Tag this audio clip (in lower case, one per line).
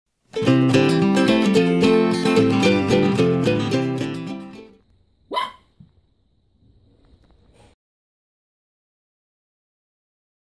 dog
domestic animals
animal